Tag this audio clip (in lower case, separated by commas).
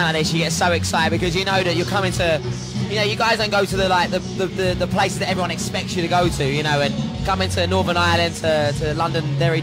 speech, music